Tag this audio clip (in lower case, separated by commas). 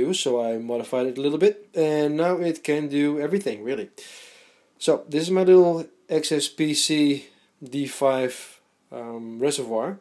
speech